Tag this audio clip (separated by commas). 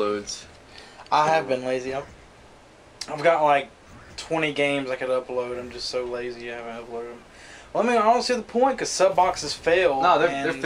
Speech